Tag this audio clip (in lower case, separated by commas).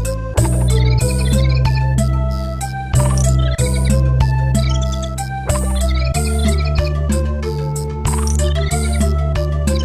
country, music